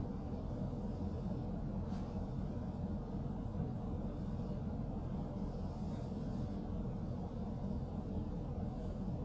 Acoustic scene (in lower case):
car